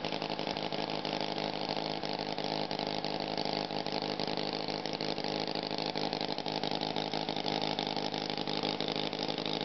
Engine idling at mid-frequency